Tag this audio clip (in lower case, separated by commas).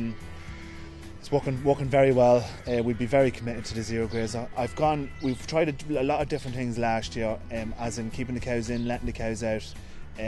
speech, music